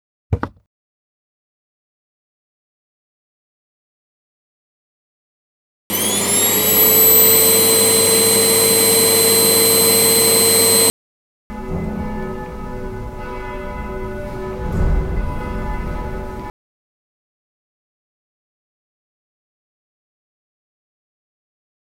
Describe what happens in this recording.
Phone carried while vacuuming living room. Footsteps audible throughout, vacuum cleaner running, doorbell rang and interrupted the session.